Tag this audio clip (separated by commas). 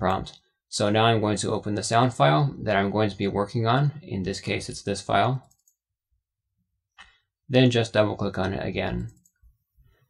Speech